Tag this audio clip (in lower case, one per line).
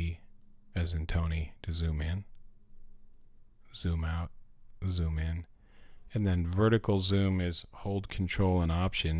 speech